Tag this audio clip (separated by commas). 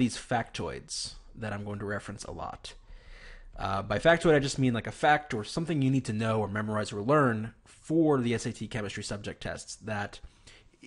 Speech